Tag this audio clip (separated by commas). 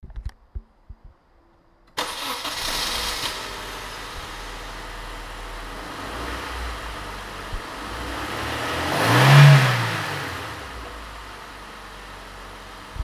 Engine starting, Engine